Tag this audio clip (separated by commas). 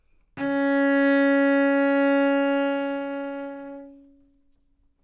Bowed string instrument, Musical instrument, Music